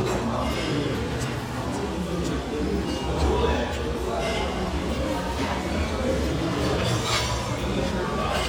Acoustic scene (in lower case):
restaurant